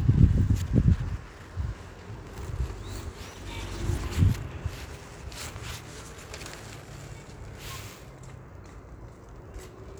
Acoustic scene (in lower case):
park